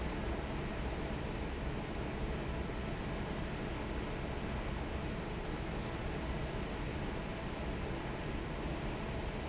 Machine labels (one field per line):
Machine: fan